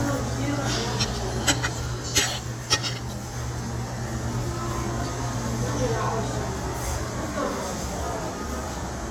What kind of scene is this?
restaurant